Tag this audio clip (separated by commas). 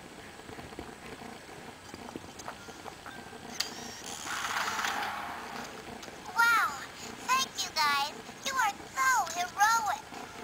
Speech